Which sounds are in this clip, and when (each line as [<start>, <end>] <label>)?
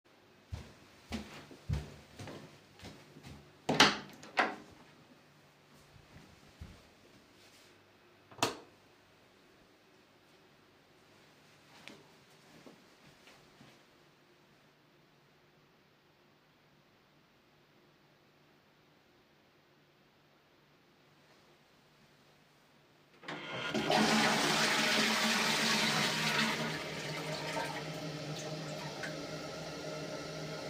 [0.34, 3.39] footsteps
[3.58, 4.75] door
[8.29, 8.75] light switch
[11.69, 13.85] footsteps
[23.16, 30.70] toilet flushing